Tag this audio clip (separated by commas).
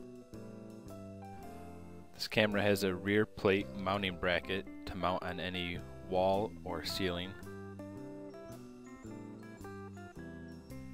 Speech, Music